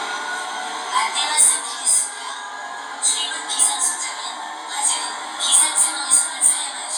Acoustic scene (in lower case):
subway train